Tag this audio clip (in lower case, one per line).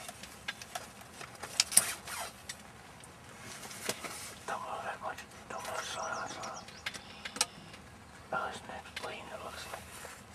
bird
speech